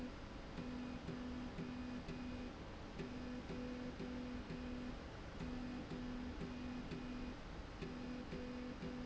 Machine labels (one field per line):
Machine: slide rail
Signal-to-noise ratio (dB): 6 dB